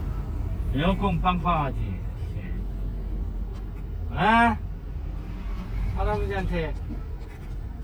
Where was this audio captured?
in a car